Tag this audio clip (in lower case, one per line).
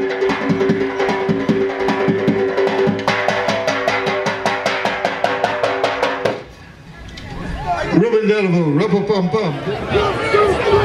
speech
music